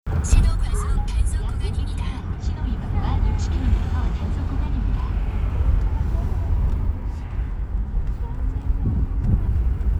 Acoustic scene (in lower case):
car